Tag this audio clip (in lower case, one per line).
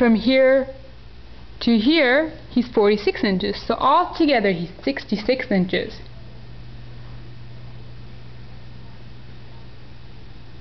speech